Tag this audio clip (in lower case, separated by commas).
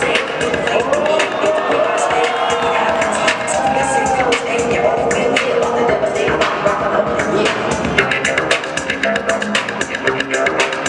music